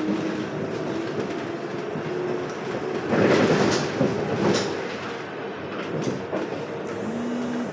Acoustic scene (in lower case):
bus